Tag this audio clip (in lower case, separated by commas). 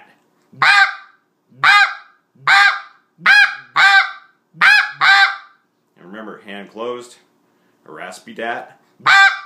fowl, goose, honk